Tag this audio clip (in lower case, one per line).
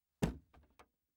domestic sounds
door
knock